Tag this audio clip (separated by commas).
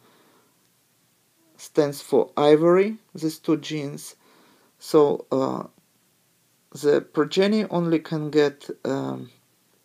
Speech